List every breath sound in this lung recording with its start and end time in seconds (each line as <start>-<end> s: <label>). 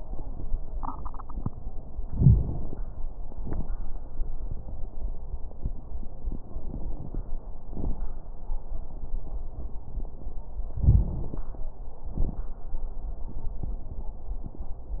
2.02-2.76 s: inhalation
2.02-2.76 s: crackles
3.38-3.68 s: exhalation
10.75-11.41 s: inhalation
10.75-11.41 s: crackles
12.06-12.51 s: exhalation
12.06-12.51 s: crackles